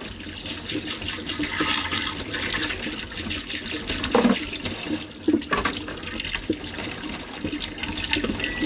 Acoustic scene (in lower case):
kitchen